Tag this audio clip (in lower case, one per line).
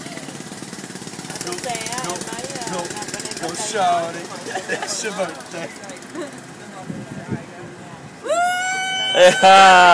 speech